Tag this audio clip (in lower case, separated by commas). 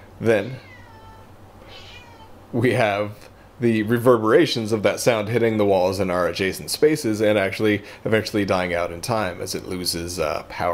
speech